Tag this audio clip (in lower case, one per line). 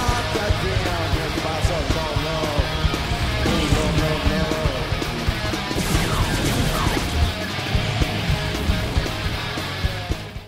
music
electric guitar